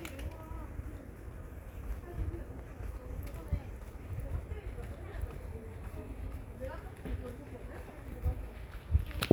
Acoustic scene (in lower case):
residential area